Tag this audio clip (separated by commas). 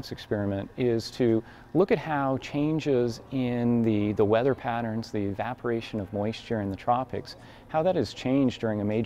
Speech